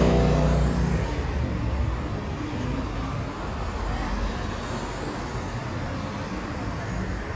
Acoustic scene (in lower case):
residential area